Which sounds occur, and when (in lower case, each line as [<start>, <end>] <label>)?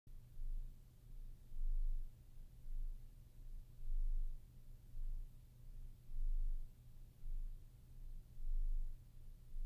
[0.04, 9.65] noise